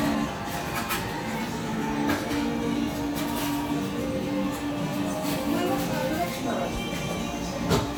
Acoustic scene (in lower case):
cafe